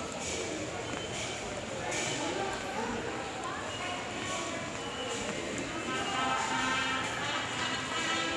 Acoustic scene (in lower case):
subway station